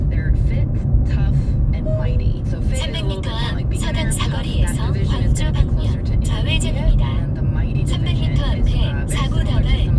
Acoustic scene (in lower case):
car